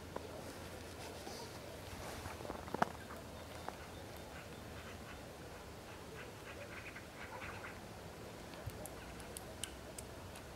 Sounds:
woodpecker pecking tree

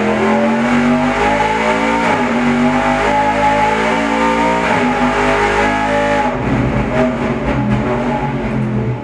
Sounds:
Vehicle, Accelerating

